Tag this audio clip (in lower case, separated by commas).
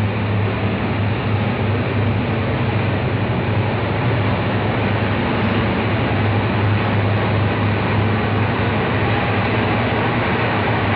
rail transport, train, railroad car